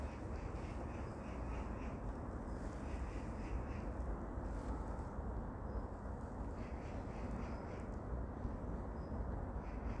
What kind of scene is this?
park